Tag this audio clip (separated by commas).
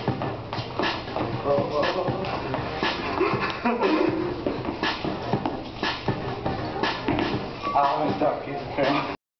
Music, Speech